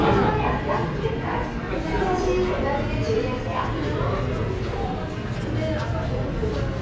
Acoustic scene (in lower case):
subway station